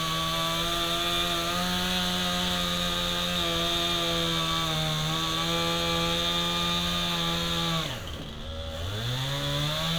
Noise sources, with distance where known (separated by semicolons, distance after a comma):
chainsaw, near